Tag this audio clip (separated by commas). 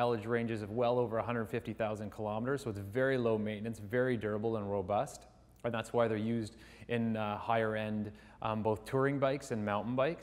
Speech